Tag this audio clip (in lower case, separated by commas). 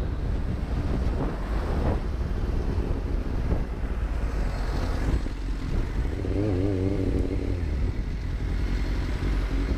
motorcycle, vehicle